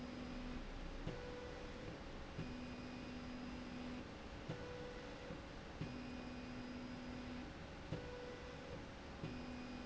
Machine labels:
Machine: slide rail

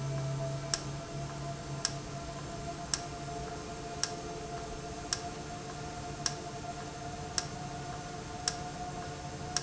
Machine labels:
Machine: valve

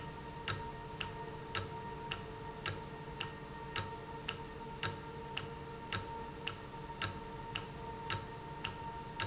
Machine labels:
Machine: valve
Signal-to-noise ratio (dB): 0 dB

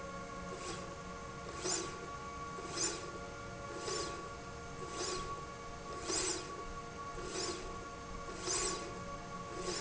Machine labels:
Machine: slide rail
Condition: normal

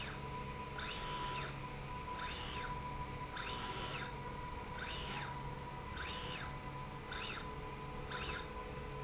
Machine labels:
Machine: slide rail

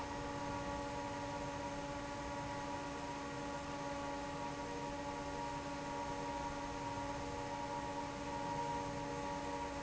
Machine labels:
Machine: fan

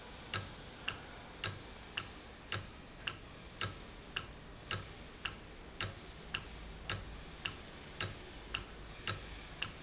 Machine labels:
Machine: valve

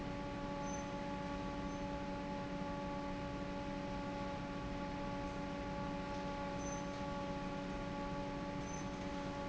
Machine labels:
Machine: fan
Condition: normal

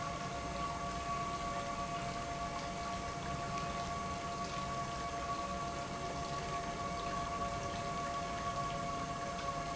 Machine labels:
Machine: pump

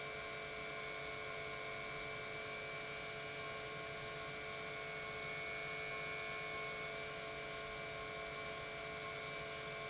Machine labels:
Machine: pump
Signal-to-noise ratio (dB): 6 dB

